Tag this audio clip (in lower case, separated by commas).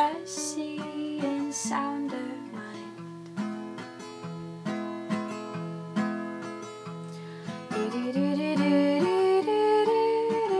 music